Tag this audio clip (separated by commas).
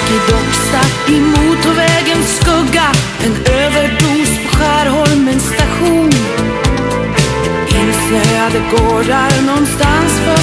Christian music